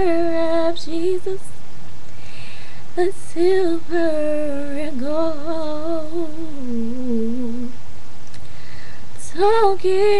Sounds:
Female singing

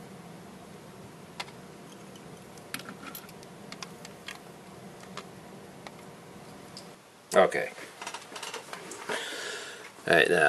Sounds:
Speech

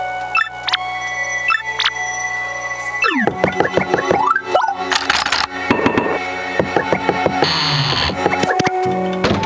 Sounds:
Door, Music, Knock, Sliding door

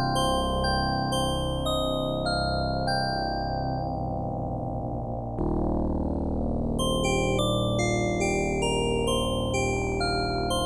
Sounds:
Music

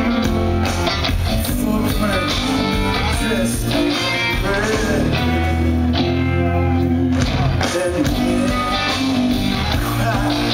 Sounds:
Music

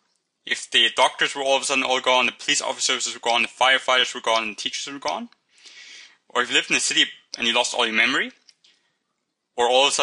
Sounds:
Speech

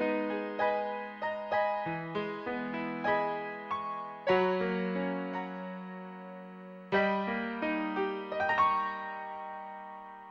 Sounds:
Musical instrument, Music, Plucked string instrument, Guitar

